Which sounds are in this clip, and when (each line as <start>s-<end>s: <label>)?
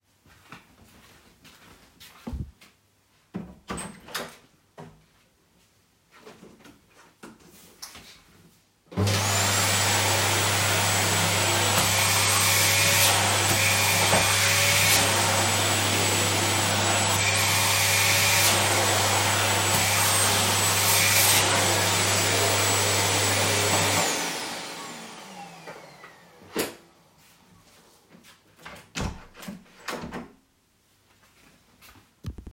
0.1s-3.1s: footsteps
2.9s-5.4s: door
4.8s-8.6s: footsteps
8.8s-26.9s: vacuum cleaner
28.4s-30.6s: door
30.7s-32.5s: footsteps